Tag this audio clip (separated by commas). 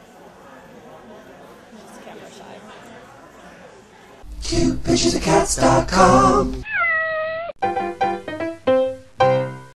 Meow, Cat, Music, Speech, Domestic animals, Animal